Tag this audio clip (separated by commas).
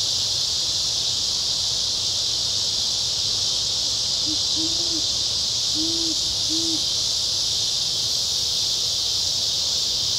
owl hooting